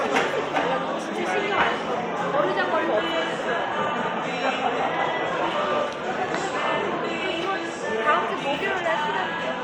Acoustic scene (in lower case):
cafe